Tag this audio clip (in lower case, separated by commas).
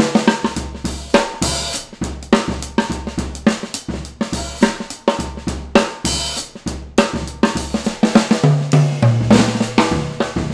percussion, snare drum, drum, drum roll, rimshot, drum kit, bass drum